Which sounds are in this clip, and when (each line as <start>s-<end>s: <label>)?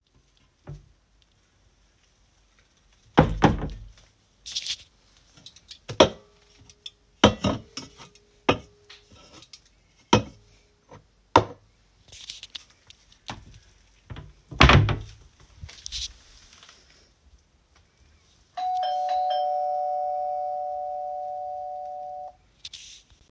3.1s-4.0s: wardrobe or drawer
14.5s-15.2s: wardrobe or drawer
18.6s-22.4s: bell ringing